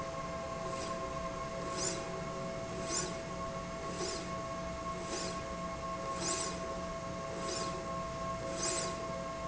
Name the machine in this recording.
slide rail